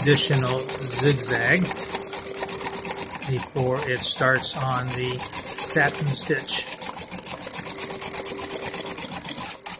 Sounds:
inside a small room, Sewing machine, Speech

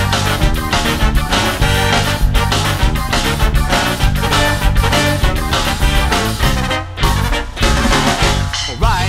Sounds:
Music

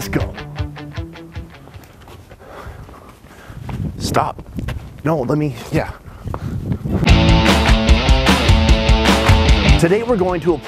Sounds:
Music, Speech

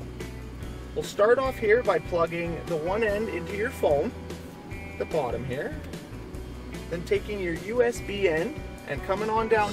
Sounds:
Music, Speech

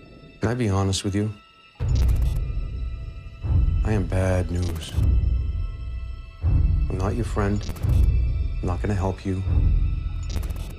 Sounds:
Speech, Music, Scary music, Background music

